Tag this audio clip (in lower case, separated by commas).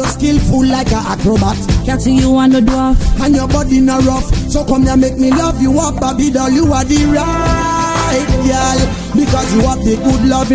music, exciting music